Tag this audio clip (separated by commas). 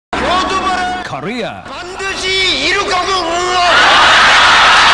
Speech, man speaking, monologue